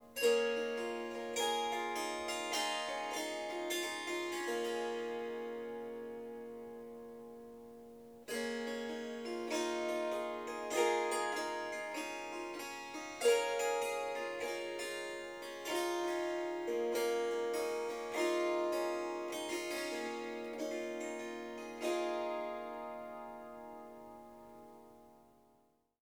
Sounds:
harp, music, musical instrument

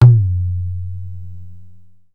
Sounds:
drum, percussion, music, musical instrument, tabla

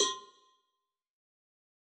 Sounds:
bell, cowbell

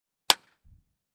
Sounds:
hands, clapping

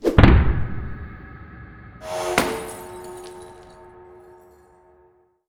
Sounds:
shatter, glass

